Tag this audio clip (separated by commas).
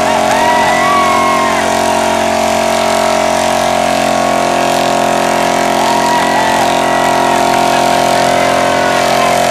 Vehicle